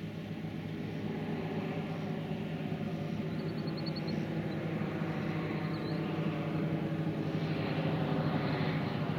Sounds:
fixed-wing aircraft
vehicle
aircraft

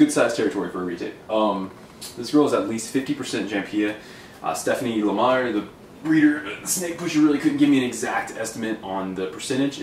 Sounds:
inside a small room
speech

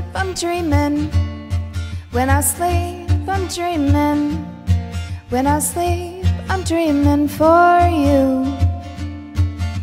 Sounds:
music
guitar
musical instrument

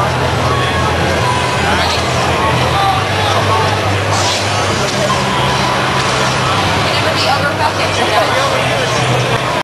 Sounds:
music
speech

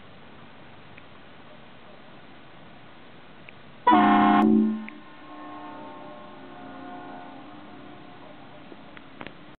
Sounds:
echo

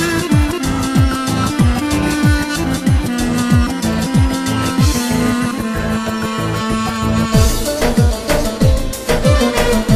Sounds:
music

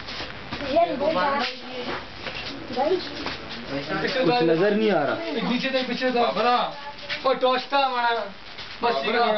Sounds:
speech

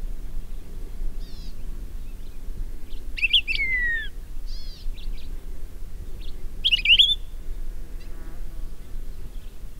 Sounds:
wood thrush calling

